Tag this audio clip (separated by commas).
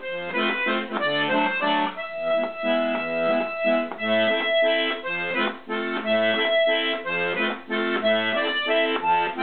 Music, Accordion